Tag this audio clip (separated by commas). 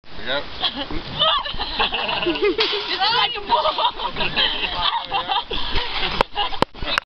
Speech